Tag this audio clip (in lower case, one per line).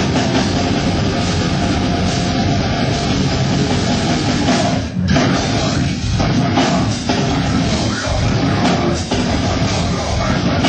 music